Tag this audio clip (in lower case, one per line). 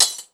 glass
shatter